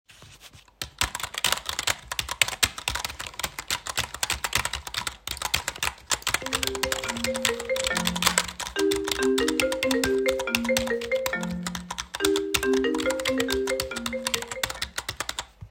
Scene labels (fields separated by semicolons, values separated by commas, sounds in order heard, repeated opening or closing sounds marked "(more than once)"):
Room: office; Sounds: keyboard typing, phone ringing